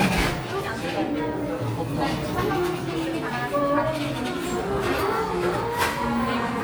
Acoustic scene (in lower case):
crowded indoor space